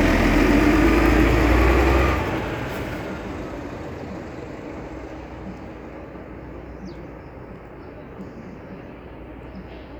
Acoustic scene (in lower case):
street